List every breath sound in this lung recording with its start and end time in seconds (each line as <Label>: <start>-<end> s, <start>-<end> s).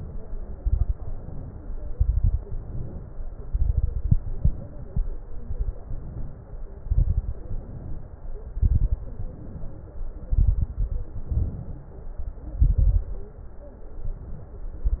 Inhalation: 0.95-1.90 s, 2.45-3.40 s, 5.83-6.65 s, 7.45-8.34 s, 9.06-10.26 s, 11.31-12.23 s, 13.93-14.80 s
Exhalation: 0.53-0.91 s, 1.96-2.41 s, 3.48-4.10 s, 6.82-7.37 s, 8.55-9.02 s, 10.28-11.19 s, 12.52-13.39 s
Crackles: 0.53-0.91 s, 1.96-2.41 s, 3.48-4.10 s, 6.82-7.37 s, 8.55-9.02 s, 10.28-11.19 s, 12.52-13.39 s